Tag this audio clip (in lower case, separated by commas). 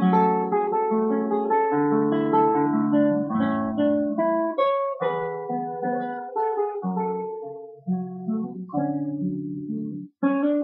strum, music, plucked string instrument, guitar, musical instrument